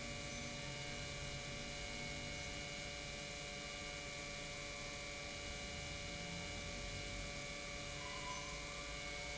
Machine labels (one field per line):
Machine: pump